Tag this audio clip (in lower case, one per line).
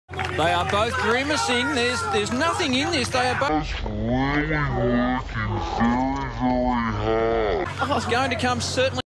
run
outside, urban or man-made
speech